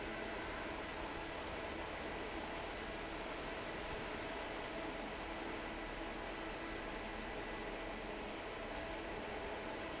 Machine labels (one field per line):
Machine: fan